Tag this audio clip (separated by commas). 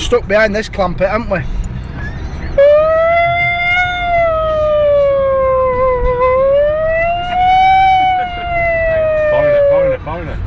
outside, urban or man-made, Vehicle, Speech, Car